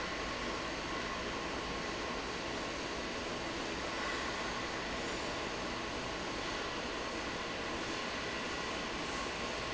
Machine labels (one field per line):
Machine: fan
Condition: normal